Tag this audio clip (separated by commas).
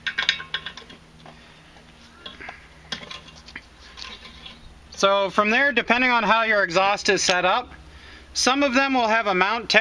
Tools